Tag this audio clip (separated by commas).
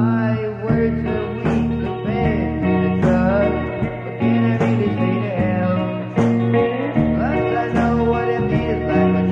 Music